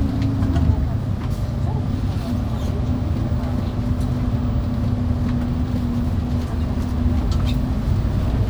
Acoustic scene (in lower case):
bus